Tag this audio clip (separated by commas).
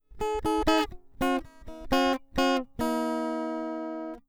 Plucked string instrument, Guitar, Music, Musical instrument